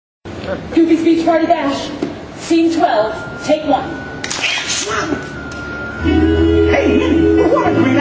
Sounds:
speech, music

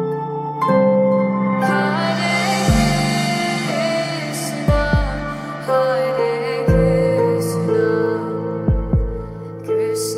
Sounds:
mantra, music

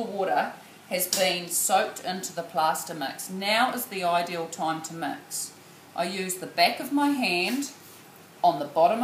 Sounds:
speech

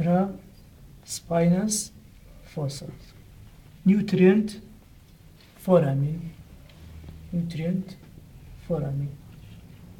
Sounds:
speech

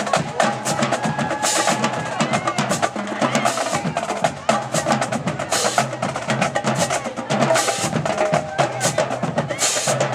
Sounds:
speech, percussion, wood block, music

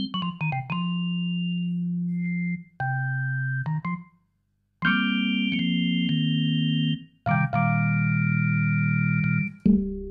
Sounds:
electronic organ, playing electronic organ, organ

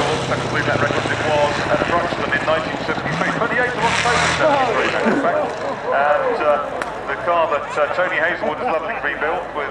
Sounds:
vehicle, speech, truck

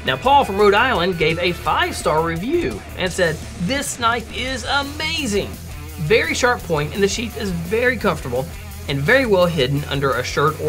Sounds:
speech, music

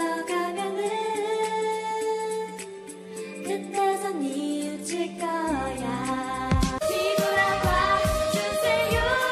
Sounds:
music, female singing

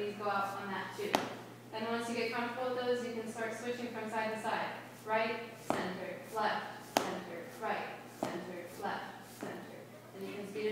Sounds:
speech

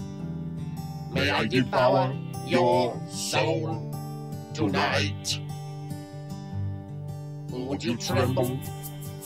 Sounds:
speech, background music, music

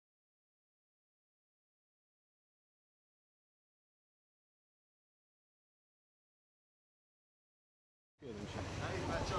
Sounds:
speech, silence

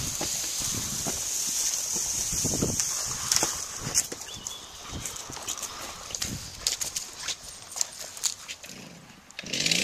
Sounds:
chainsaw

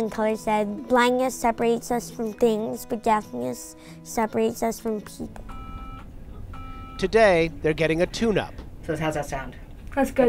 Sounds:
music, speech

